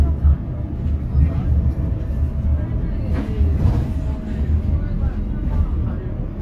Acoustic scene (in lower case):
bus